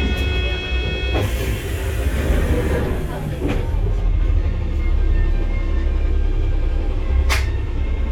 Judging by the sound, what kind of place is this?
bus